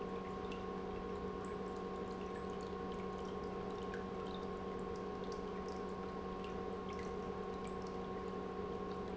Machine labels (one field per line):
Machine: pump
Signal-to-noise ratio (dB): 6 dB